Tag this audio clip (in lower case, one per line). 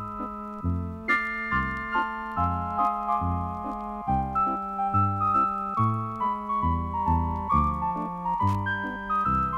music